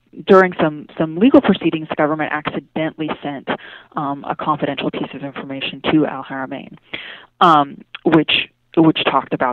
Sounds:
Speech

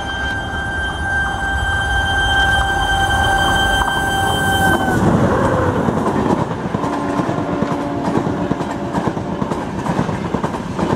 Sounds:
train whistling

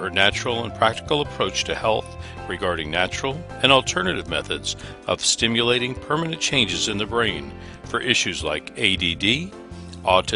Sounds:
Music, Speech

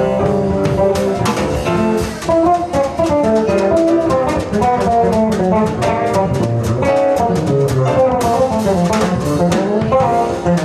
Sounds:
Music, Bowed string instrument, Plucked string instrument, Musical instrument, Guitar, Drum kit, Bass guitar

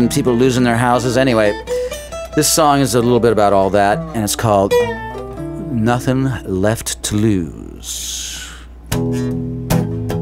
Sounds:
Speech, Music

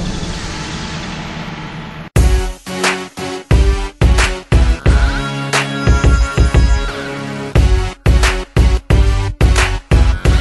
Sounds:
Music, Theme music, Soundtrack music

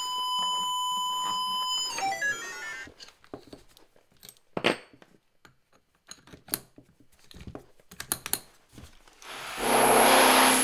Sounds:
Drill

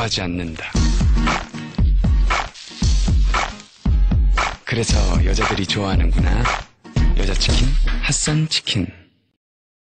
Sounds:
Music, Speech

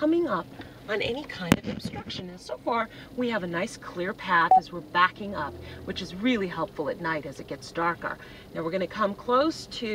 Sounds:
Speech

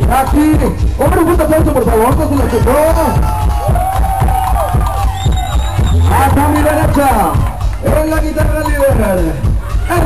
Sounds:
Music, Dance music

